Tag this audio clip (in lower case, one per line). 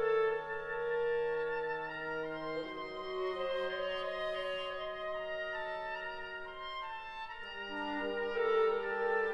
music